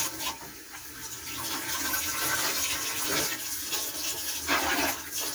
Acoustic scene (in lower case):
kitchen